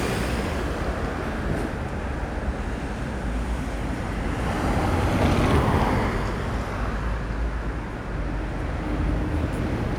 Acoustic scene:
street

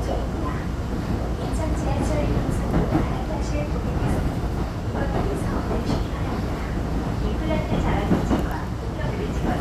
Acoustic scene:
subway train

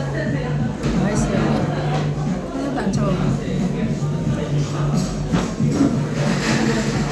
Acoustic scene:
crowded indoor space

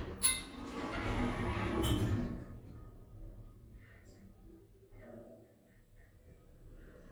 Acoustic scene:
elevator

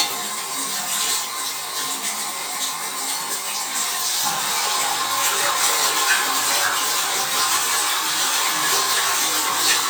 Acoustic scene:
restroom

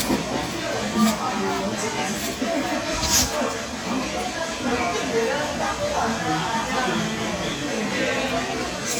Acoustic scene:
cafe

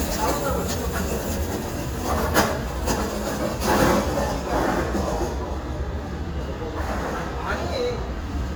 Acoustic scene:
residential area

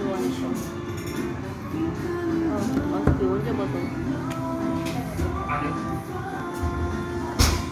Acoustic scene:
cafe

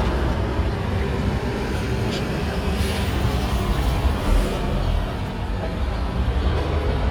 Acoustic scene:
street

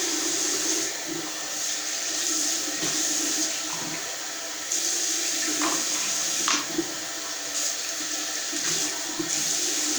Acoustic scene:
restroom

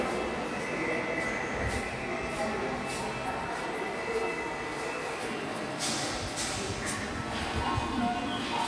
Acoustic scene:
subway station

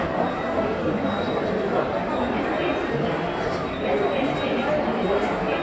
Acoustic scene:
subway station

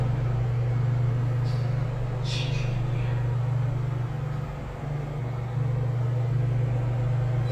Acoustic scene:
elevator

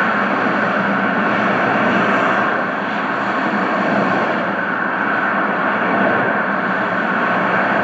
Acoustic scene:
street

